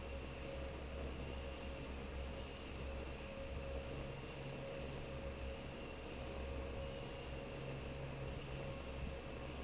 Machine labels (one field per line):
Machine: fan